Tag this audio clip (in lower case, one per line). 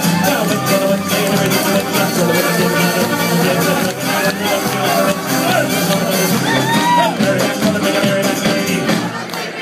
music
inside a large room or hall
singing